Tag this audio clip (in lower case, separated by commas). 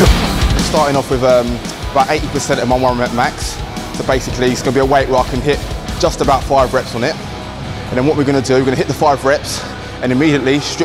speech, music